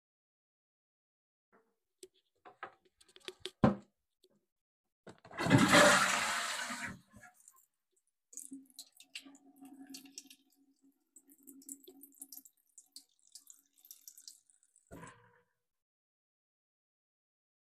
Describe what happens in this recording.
I flushed the toilet, then turned the water on and washed my hands.